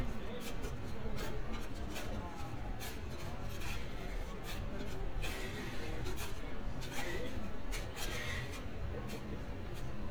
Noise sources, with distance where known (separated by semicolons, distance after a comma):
pile driver; person or small group talking, far